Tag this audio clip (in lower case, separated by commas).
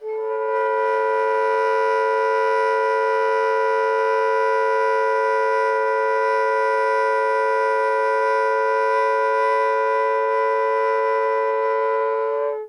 woodwind instrument, musical instrument, music